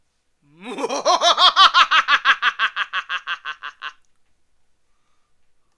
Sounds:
Laughter, Human voice

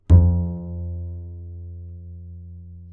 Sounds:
Bowed string instrument, Musical instrument, Music

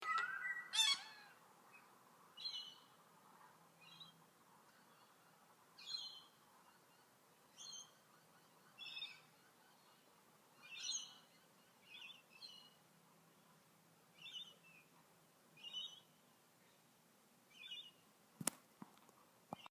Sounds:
Animal, Wild animals, bird call, tweet, Bird

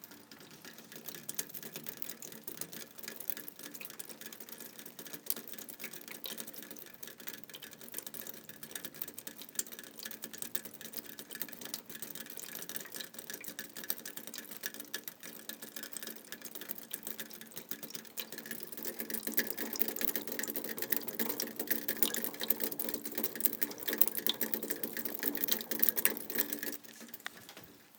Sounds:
Water, Rain

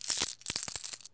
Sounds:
Domestic sounds, Coin (dropping)

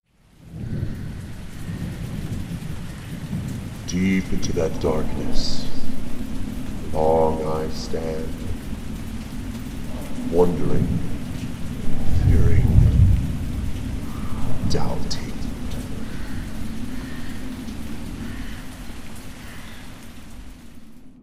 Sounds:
Bird, Wild animals, Animal, Crow

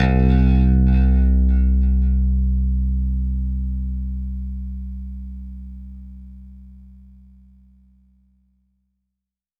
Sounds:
Music, Bass guitar, Plucked string instrument, Guitar, Musical instrument

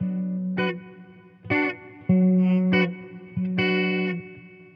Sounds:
Guitar, Electric guitar, Musical instrument, Plucked string instrument, Music

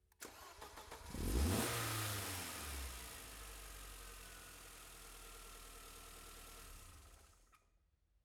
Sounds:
Motor vehicle (road), vroom, Car, Vehicle, Engine, Engine starting

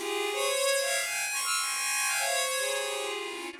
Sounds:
Music, Harmonica, Musical instrument

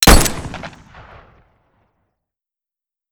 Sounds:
Gunshot, Explosion

